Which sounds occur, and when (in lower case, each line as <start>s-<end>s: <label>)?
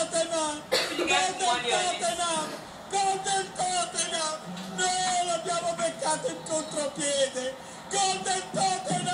0.0s-0.6s: man speaking
0.0s-9.1s: mechanisms
0.0s-9.1s: television
0.7s-1.0s: cough
0.7s-2.5s: man speaking
1.0s-2.1s: female speech
2.8s-4.3s: man speaking
4.5s-4.6s: generic impact sounds
4.7s-7.6s: man speaking
7.6s-7.8s: breathing
7.9s-9.1s: man speaking
8.5s-8.7s: generic impact sounds
8.8s-9.1s: generic impact sounds